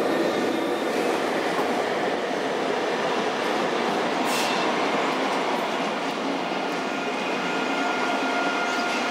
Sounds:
rail transport, vehicle, railroad car, train

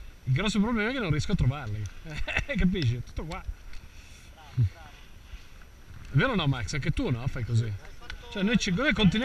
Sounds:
speech

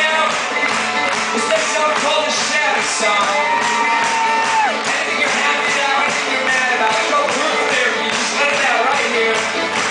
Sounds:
music, violin, musical instrument

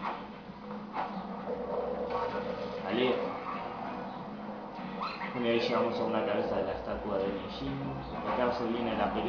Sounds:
speech

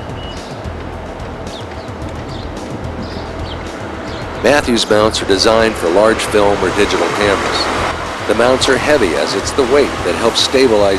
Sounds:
music, car, vehicle, speech, motor vehicle (road)

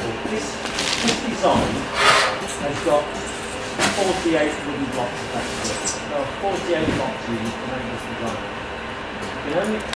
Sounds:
speech

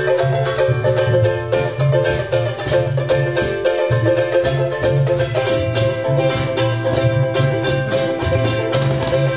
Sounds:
ukulele, inside a small room, music

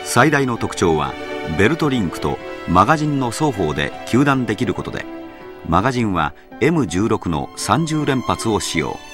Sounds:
speech, music

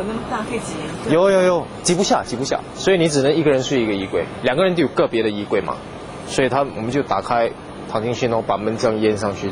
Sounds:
speech

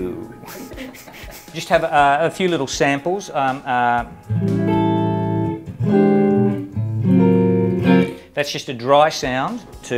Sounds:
guitar, effects unit, music, speech, musical instrument, electric guitar, plucked string instrument

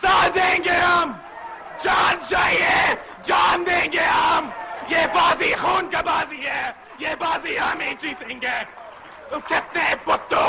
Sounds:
male speech, monologue, speech

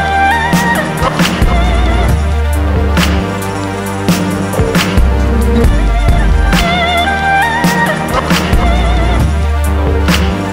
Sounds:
electronica, music

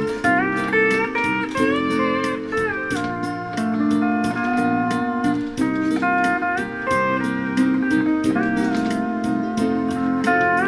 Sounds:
slide guitar, music

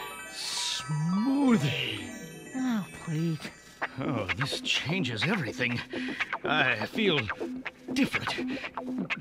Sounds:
music, speech

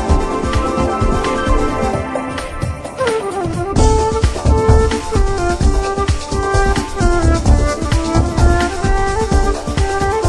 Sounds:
music

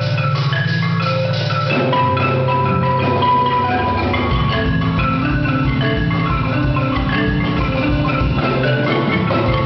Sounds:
glockenspiel, mallet percussion, marimba, playing marimba

